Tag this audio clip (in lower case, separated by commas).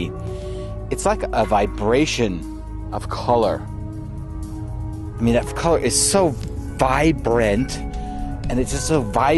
music, speech